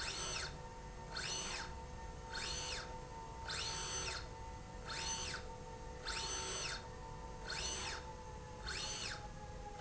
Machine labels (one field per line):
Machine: slide rail